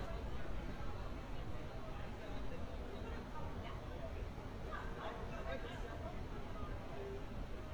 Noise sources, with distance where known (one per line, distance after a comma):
person or small group talking, far